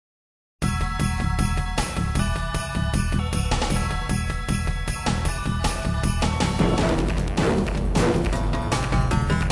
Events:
0.6s-9.5s: music

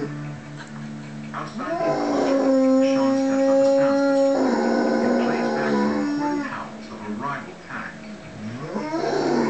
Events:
0.0s-9.4s: television
0.6s-0.9s: pant (dog)
1.0s-1.1s: pant (dog)
1.3s-2.6s: man speaking
1.3s-1.5s: tap
1.5s-6.5s: howl
2.8s-4.1s: man speaking
5.1s-5.8s: man speaking
6.2s-6.7s: man speaking
6.8s-8.0s: man speaking
8.7s-9.4s: howl

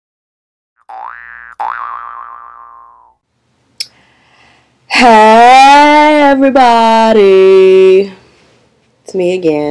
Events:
0.7s-3.2s: sound effect
3.2s-9.7s: mechanisms
3.7s-3.9s: human sounds
3.9s-4.7s: gasp
4.8s-8.2s: woman speaking
8.2s-8.9s: generic impact sounds
8.7s-9.1s: human voice
9.0s-9.7s: woman speaking

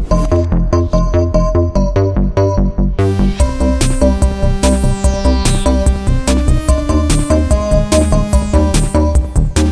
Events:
0.0s-9.7s: music

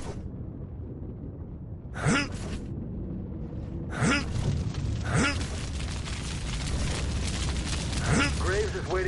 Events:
0.0s-9.0s: video game sound
1.9s-2.3s: human sounds
2.3s-2.7s: generic impact sounds
3.4s-3.9s: generic impact sounds
3.9s-4.3s: human sounds
4.3s-9.0s: fire
5.0s-5.4s: human sounds
8.0s-8.3s: human sounds
8.4s-9.0s: man speaking

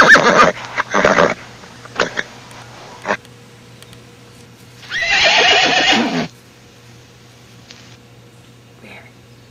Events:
0.0s-0.5s: horse
0.0s-9.5s: mechanisms
0.6s-0.7s: tick
0.8s-1.4s: horse
1.6s-2.3s: horse
3.0s-3.2s: horse
3.2s-3.3s: tick
3.7s-4.5s: bird vocalization
3.8s-4.0s: tick
4.3s-4.5s: tick
4.8s-6.3s: neigh
7.7s-8.0s: surface contact
8.8s-9.1s: human voice
9.3s-9.5s: bird vocalization

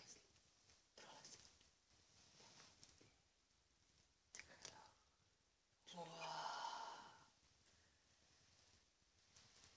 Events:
0.0s-9.7s: background noise
2.8s-2.9s: clicking
4.6s-4.7s: finger snapping
5.8s-7.2s: whispering
6.2s-6.3s: squeal
9.3s-9.7s: generic impact sounds

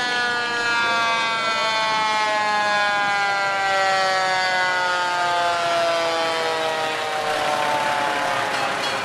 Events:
0.0s-9.0s: fire truck (siren)
0.0s-9.0s: wind

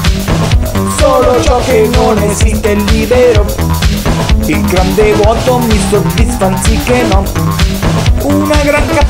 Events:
0.0s-9.0s: music
0.9s-2.3s: choir
2.3s-3.5s: male singing
4.3s-7.3s: male singing
8.0s-9.0s: male singing

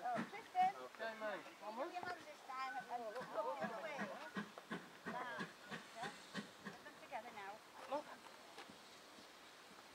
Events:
0.0s-8.1s: hubbub
0.0s-9.9s: wind
0.0s-0.2s: quack
0.5s-0.7s: quack
3.1s-3.3s: quack
3.5s-3.7s: quack
3.9s-4.1s: quack
4.3s-4.4s: quack
4.6s-4.8s: quack
5.0s-5.1s: quack
5.3s-5.5s: quack
5.6s-5.8s: quack
5.9s-6.1s: quack
6.3s-6.5s: quack
6.6s-6.8s: quack

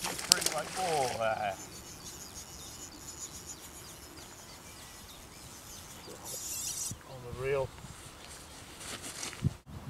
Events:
0.0s-0.7s: water
0.0s-9.8s: background noise
0.2s-0.5s: male speech
0.8s-1.5s: male speech
7.1s-7.7s: male speech

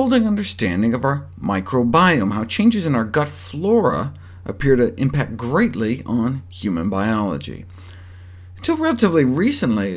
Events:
0.0s-9.9s: background noise
0.0s-1.1s: male speech
1.4s-4.0s: male speech
4.1s-4.4s: breathing
4.4s-6.3s: male speech
6.5s-7.7s: male speech
7.7s-8.5s: breathing
8.6s-9.9s: male speech

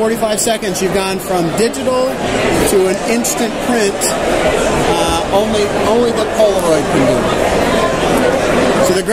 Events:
0.0s-2.1s: man speaking
0.0s-9.1s: background noise
2.6s-3.4s: man speaking
3.7s-4.2s: man speaking
4.9s-5.2s: man speaking
5.4s-7.3s: man speaking

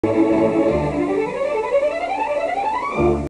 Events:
0.0s-3.2s: background noise
0.0s-3.2s: music

